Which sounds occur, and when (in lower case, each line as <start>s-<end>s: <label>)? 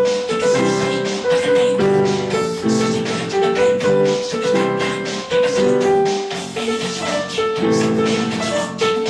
0.0s-9.0s: music